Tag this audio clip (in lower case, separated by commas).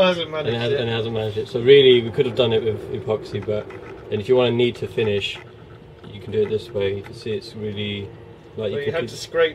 speech